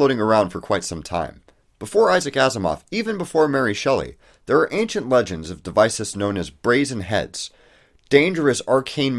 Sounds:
monologue

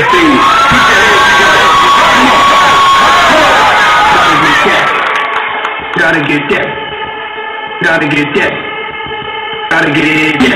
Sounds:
Crowd

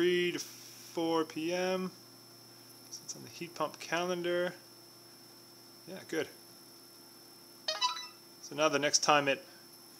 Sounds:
Speech

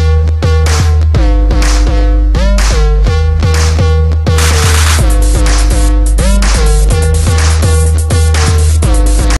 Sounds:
Music

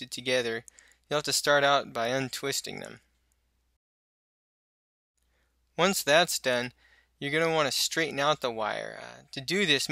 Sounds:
Speech

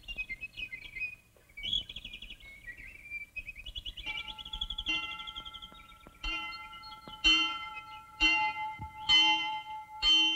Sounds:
Chirp, outside, rural or natural

